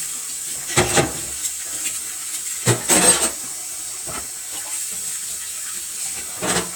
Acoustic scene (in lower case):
kitchen